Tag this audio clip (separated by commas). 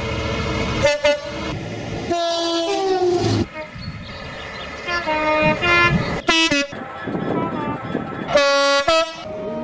underground